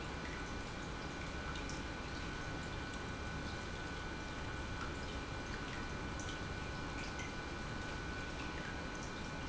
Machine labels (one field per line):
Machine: pump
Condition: normal